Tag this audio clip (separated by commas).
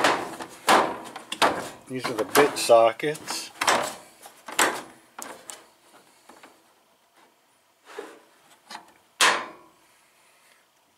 Speech